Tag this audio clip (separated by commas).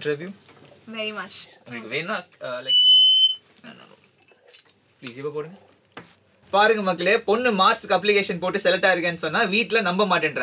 bleep, Speech